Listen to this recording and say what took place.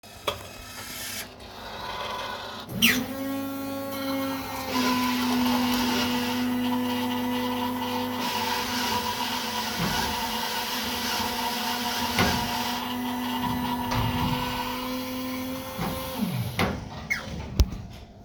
A coffee machine automatically dropped a coffee cup and then started filling the cup.